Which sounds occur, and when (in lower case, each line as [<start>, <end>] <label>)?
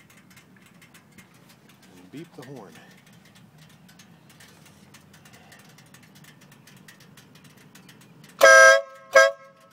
[0.00, 9.72] wind
[0.07, 0.18] generic impact sounds
[0.26, 0.38] generic impact sounds
[0.54, 0.98] generic impact sounds
[1.09, 1.36] generic impact sounds
[1.45, 1.53] generic impact sounds
[1.64, 1.72] generic impact sounds
[1.80, 2.00] generic impact sounds
[2.09, 2.98] male speech
[2.09, 2.23] generic impact sounds
[2.32, 2.58] generic impact sounds
[2.66, 3.12] generic impact sounds
[2.69, 3.00] breathing
[3.22, 3.41] generic impact sounds
[3.56, 3.74] generic impact sounds
[3.87, 4.03] generic impact sounds
[4.25, 4.48] generic impact sounds
[4.40, 4.88] sniff
[4.60, 4.68] generic impact sounds
[4.75, 4.82] generic impact sounds
[4.91, 5.03] generic impact sounds
[5.12, 5.41] generic impact sounds
[5.26, 5.74] breathing
[5.50, 6.29] generic impact sounds
[6.40, 6.57] generic impact sounds
[6.65, 6.79] generic impact sounds
[6.86, 7.06] generic impact sounds
[7.15, 7.24] generic impact sounds
[7.34, 7.61] generic impact sounds
[7.73, 8.06] generic impact sounds
[8.21, 8.30] generic impact sounds
[8.38, 8.80] truck horn
[8.87, 8.98] generic impact sounds
[9.10, 9.36] truck horn
[9.39, 9.46] generic impact sounds
[9.57, 9.72] generic impact sounds